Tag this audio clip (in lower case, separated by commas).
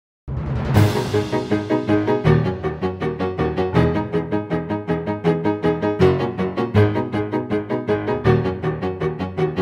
theme music